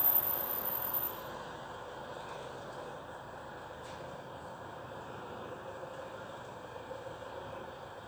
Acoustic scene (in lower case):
residential area